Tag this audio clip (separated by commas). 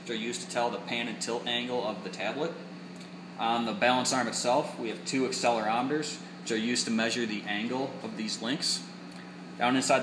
Speech